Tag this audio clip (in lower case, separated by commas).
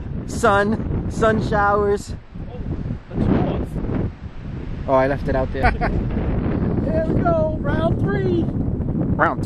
speech